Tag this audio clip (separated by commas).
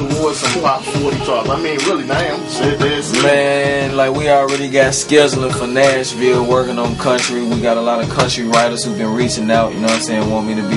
Music, Rapping, Speech